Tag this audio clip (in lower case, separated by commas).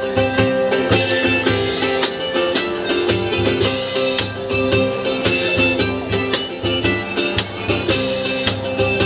music, independent music